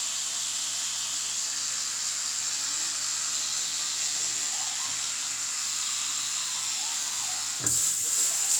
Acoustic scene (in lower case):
restroom